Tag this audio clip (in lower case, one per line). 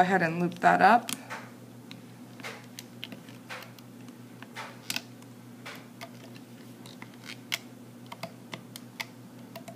inside a small room
speech